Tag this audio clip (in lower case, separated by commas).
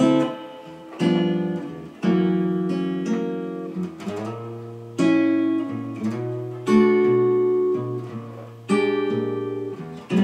musical instrument, guitar, plucked string instrument, strum, acoustic guitar, music